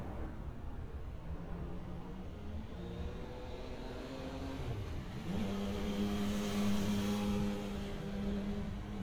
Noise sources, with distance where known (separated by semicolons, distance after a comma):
medium-sounding engine